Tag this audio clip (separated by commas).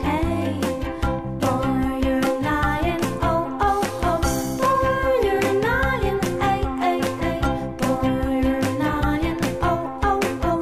Music